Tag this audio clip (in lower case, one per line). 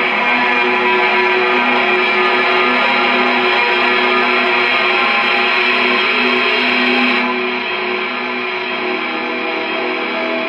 music
musical instrument